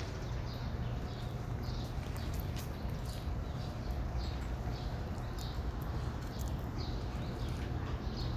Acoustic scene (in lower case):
park